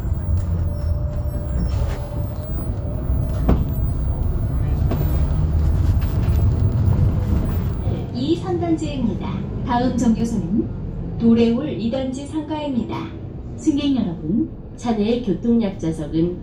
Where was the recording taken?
on a bus